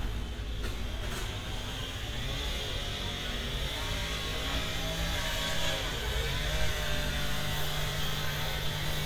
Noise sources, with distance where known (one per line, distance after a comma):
chainsaw, near